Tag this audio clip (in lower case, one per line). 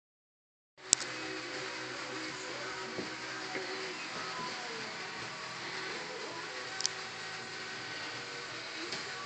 music